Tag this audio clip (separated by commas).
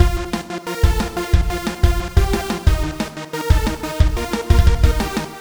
Percussion, Musical instrument, Music, Drum kit